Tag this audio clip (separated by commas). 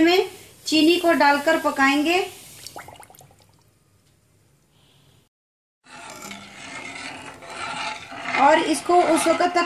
Speech